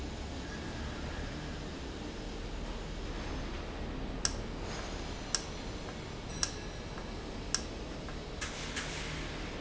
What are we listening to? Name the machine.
valve